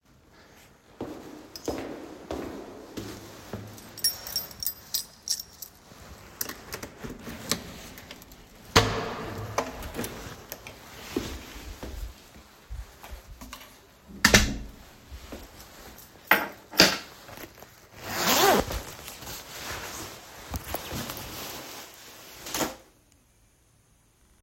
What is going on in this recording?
I walked down the hallway and used my keys to open the door. After entering the apartment, I placed the keys on top of the table and unzipped my jacket and dropped it on the floor.